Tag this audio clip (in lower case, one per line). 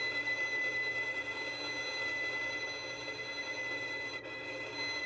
bowed string instrument
music
musical instrument